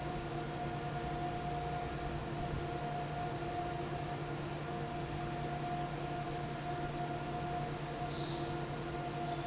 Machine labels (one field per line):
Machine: fan